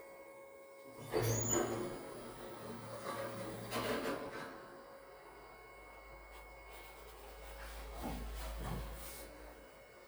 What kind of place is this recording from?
elevator